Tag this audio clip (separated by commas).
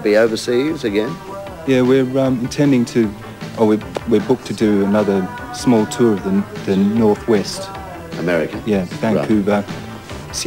Speech, Music